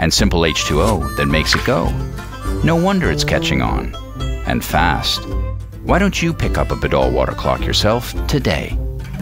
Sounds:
music, speech

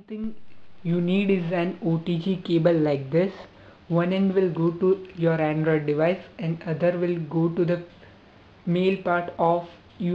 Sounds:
speech

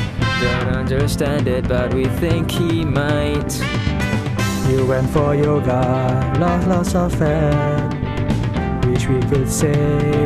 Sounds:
music

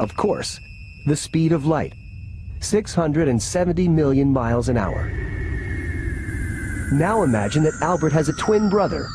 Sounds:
speech

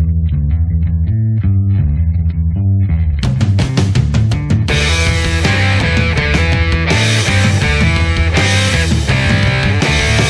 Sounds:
music, rock music, progressive rock

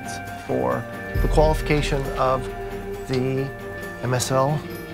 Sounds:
music, speech

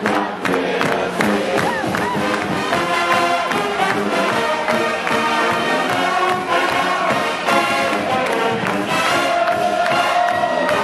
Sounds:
music, background music

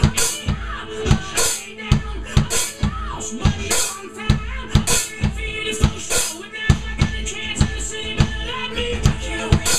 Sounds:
musical instrument, drum kit, drum

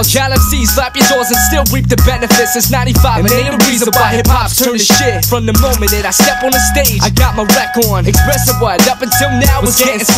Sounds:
music

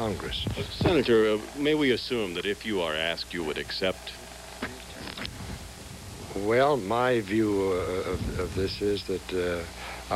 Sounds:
speech

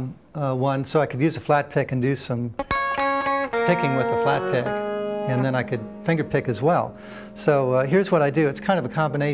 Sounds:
guitar, plucked string instrument, musical instrument, music, speech, strum

